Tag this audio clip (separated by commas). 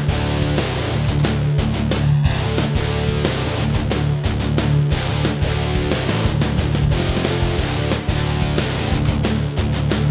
Music